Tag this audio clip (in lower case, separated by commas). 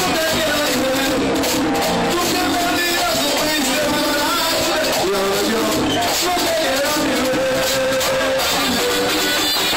music, speech